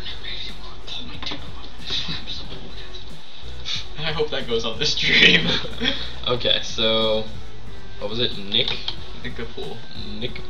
Birds are singing and a man speaks and laughs